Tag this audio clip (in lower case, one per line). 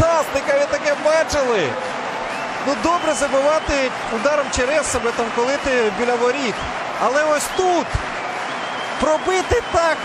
speech